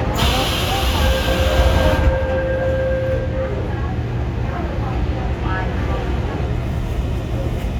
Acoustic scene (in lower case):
subway train